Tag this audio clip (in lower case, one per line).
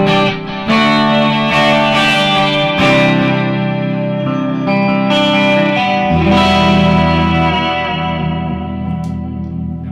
guitar
music
speech
musical instrument
plucked string instrument